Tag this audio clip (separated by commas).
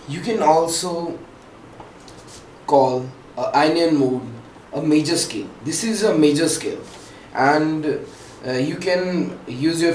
Speech